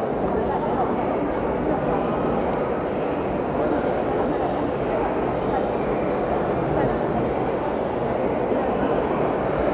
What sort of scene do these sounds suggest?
crowded indoor space